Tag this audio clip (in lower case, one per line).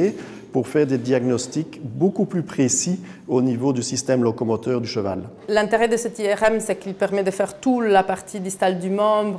speech